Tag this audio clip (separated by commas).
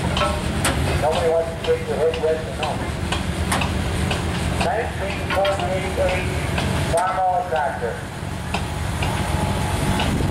Speech